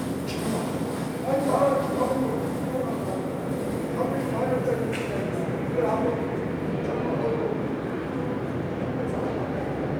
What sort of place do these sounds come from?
subway station